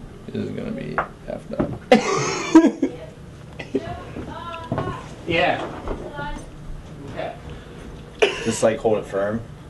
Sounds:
speech

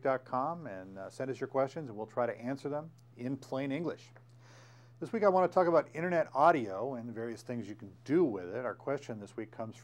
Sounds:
speech

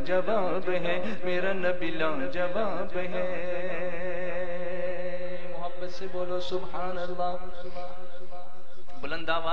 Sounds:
music, speech

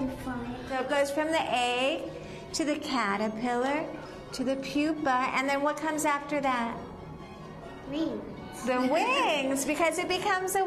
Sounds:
woman speaking, music, child speech, speech

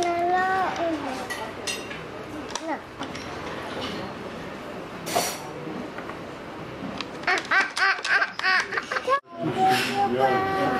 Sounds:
baby laughter, inside a public space, speech, child speech

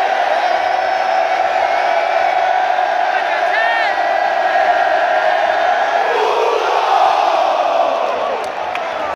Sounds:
speech

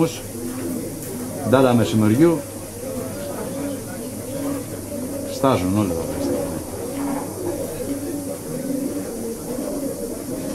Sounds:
bird, speech, pigeon

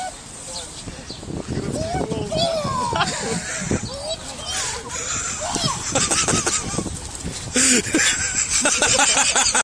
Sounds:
tweet, bird call, bird

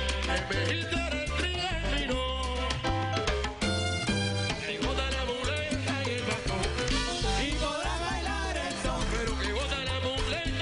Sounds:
dance music, salsa music, music

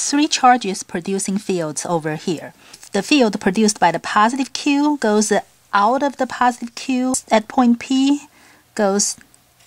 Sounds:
speech

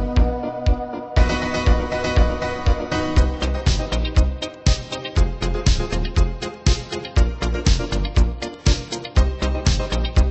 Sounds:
music

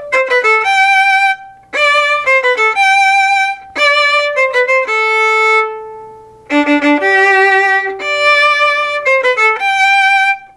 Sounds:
fiddle, bowed string instrument

